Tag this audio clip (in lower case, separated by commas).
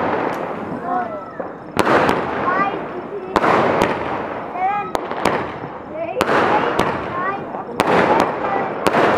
speech, firecracker